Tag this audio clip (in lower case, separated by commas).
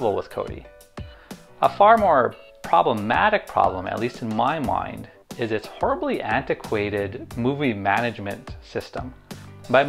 music, speech